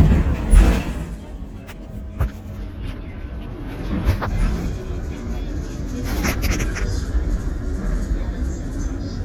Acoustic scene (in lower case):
bus